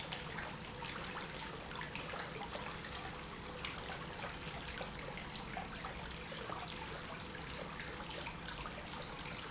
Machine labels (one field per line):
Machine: pump